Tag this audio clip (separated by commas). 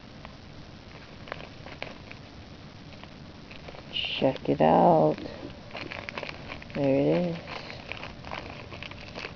Speech